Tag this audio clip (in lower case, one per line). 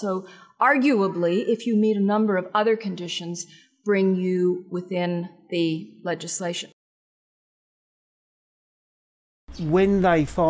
speech